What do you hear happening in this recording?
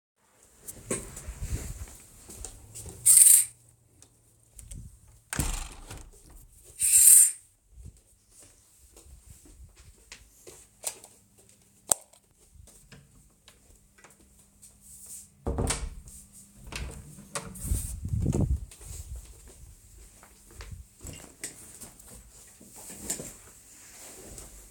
The person walks over to the window, draws back the curtain, and closes the window, but it slips from their hand and shuts with a slight bang. The person draws the curtain closed again. They head for the door, open it, and then close it. In the meantime, wind noise can be heard in the microphone, probably caused by the movement. Then the person walks over to the desk and sits down in their rolling chair.